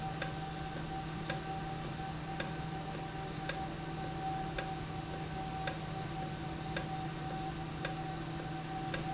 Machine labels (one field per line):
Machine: valve